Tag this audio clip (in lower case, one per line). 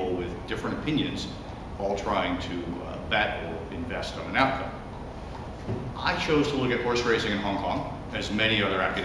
speech